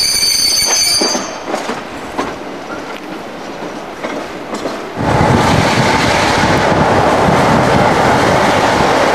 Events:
0.0s-9.1s: train

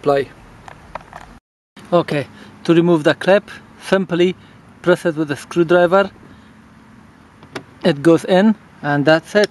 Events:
0.0s-0.2s: man speaking
0.0s-1.4s: wind
0.0s-1.4s: motor vehicle (road)
0.6s-0.8s: generic impact sounds
0.9s-1.0s: tick
1.1s-1.3s: generic impact sounds
1.7s-9.5s: motor vehicle (road)
1.8s-9.5s: wind
1.9s-2.2s: man speaking
2.0s-2.1s: tick
2.3s-2.5s: breathing
2.6s-3.4s: man speaking
3.4s-3.6s: breathing
3.8s-4.3s: man speaking
4.4s-4.6s: breathing
4.8s-5.4s: man speaking
5.5s-6.0s: man speaking
6.2s-6.6s: breathing
7.4s-7.6s: generic impact sounds
7.8s-8.5s: man speaking
8.8s-9.5s: man speaking
9.4s-9.5s: tick

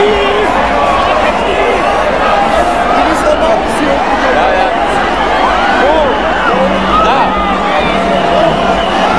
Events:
0.0s-0.4s: shout
0.0s-9.1s: crowd
0.7s-1.3s: man speaking
1.6s-2.6s: man speaking
2.9s-4.7s: man speaking
5.3s-6.3s: whoop
6.4s-7.0s: man speaking
6.8s-9.1s: whoop

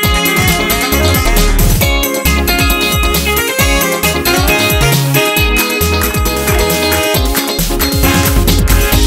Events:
0.0s-9.0s: music

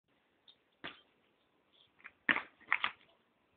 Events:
0.1s-3.5s: background noise
2.3s-2.5s: basketball bounce
3.0s-3.2s: surface contact

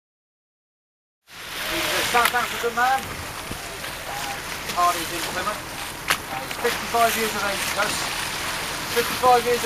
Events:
1.2s-9.6s: ocean
1.2s-9.6s: wind
3.1s-3.6s: wind noise (microphone)
4.0s-4.4s: bird call
6.0s-6.2s: generic impact sounds
9.2s-9.6s: male speech

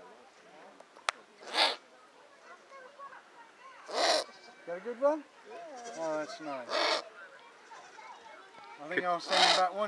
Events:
0.0s-9.8s: speech noise
1.3s-1.8s: owl
3.7s-4.4s: owl
4.6s-5.2s: man speaking
5.6s-6.4s: man speaking
6.6s-7.2s: owl
9.2s-9.7s: owl

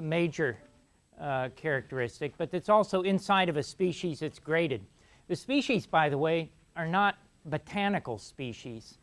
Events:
0.0s-0.6s: man speaking
0.0s-9.0s: background noise
0.6s-0.7s: generic impact sounds
1.1s-1.5s: human voice
1.5s-4.8s: man speaking
4.9s-5.2s: breathing
5.3s-6.5s: man speaking
6.7s-7.1s: man speaking
7.5s-9.0s: man speaking

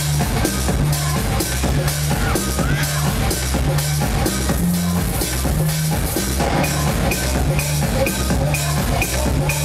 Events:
0.0s-9.6s: music
2.0s-3.0s: shout

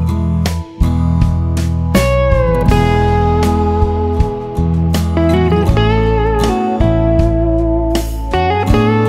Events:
0.0s-9.0s: background noise
0.0s-9.0s: wind
1.2s-1.3s: generic impact sounds
1.4s-1.6s: generic impact sounds
1.8s-2.0s: generic impact sounds
2.7s-3.0s: generic impact sounds
5.7s-6.2s: wind noise (microphone)
6.0s-6.2s: generic impact sounds
6.5s-6.8s: generic impact sounds
6.9s-7.4s: wind noise (microphone)
7.5s-7.6s: generic impact sounds
7.9s-8.5s: wind noise (microphone)
8.8s-9.0s: wind noise (microphone)

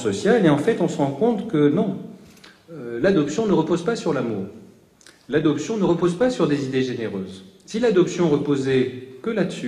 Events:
0.0s-2.2s: man speaking
0.0s-9.6s: background noise
2.1s-2.6s: breathing
2.1s-2.5s: human sounds
2.7s-4.8s: man speaking
5.0s-5.3s: human sounds
5.2s-7.4s: man speaking
7.7s-8.9s: man speaking
9.2s-9.6s: man speaking

